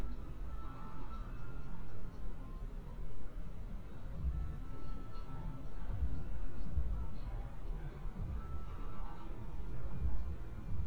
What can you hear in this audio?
music from a moving source